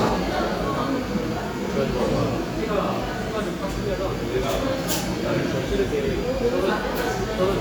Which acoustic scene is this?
cafe